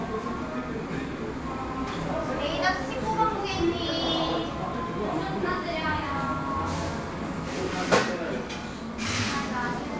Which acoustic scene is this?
crowded indoor space